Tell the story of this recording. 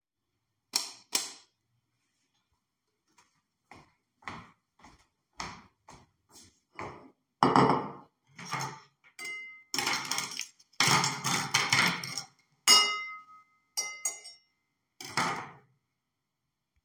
I actuate the light switch, then i went to the table and put dishes on it. I also used some cuttlery on the dishes.